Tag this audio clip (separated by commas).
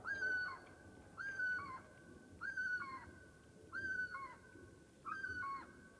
Wild animals, Animal, Bird